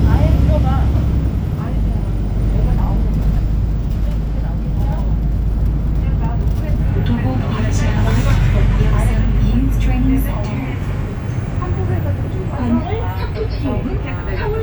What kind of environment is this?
bus